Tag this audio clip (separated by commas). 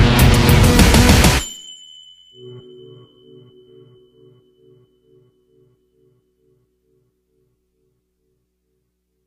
Music, Rock music